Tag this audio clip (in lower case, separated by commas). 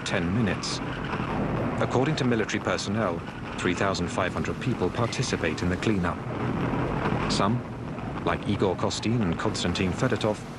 eruption, speech